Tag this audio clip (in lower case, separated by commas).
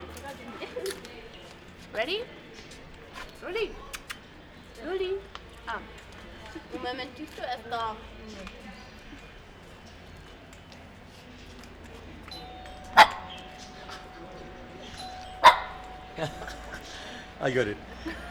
animal, domestic animals, dog